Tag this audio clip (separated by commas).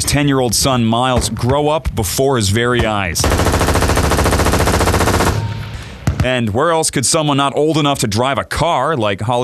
gunfire, Speech, Machine gun